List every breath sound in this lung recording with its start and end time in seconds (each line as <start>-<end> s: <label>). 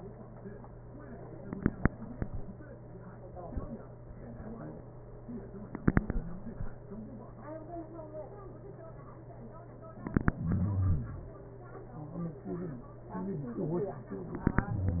10.41-11.36 s: exhalation
10.41-11.36 s: crackles